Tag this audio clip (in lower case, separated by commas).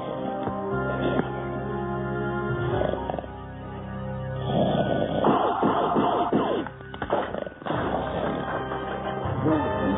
music